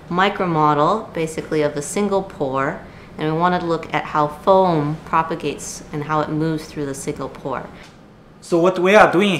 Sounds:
Speech

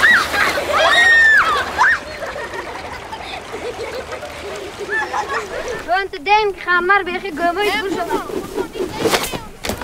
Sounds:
Speech

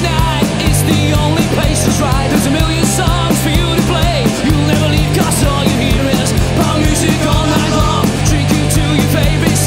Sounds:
Music, Punk rock

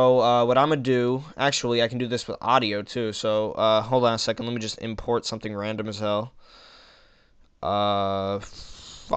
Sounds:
Speech

